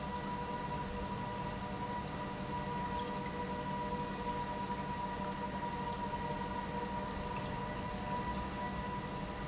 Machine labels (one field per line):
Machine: pump